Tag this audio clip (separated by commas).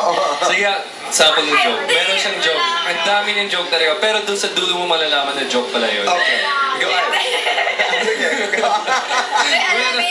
Speech